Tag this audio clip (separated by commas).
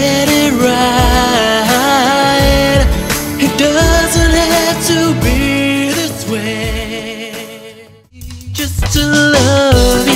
Music